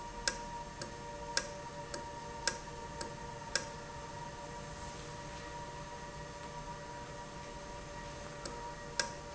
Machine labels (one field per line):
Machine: valve